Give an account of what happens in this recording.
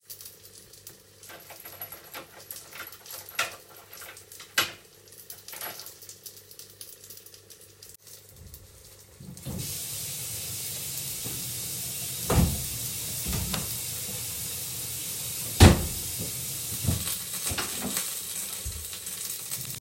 I played with my keys in the lock whilest cooking chicken. Then I turned on the water and opend and closed two doors.